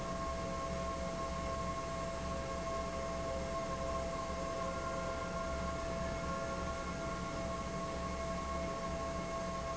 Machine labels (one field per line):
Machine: fan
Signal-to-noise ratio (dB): -6 dB